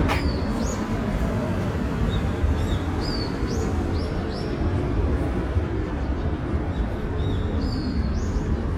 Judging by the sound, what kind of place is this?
park